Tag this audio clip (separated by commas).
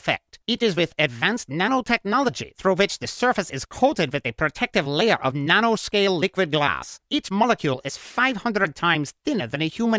Speech